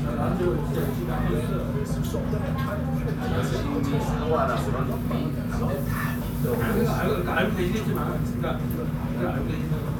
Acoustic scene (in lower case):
crowded indoor space